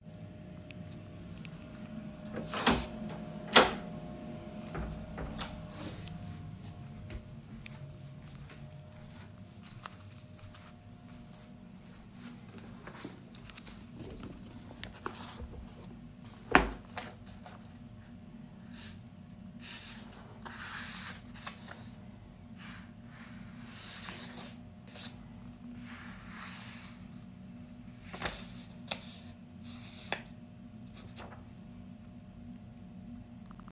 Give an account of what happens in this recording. I walked down the hallway and opened the door while the doorbell rang.